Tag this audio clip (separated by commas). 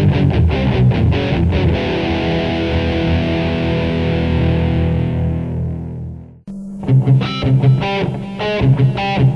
Music, Musical instrument, Electric guitar, Guitar, Strum